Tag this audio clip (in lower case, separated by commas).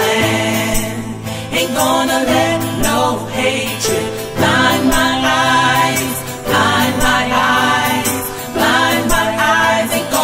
country, music